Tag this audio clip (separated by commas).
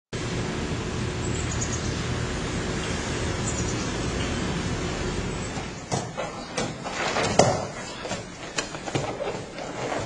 White noise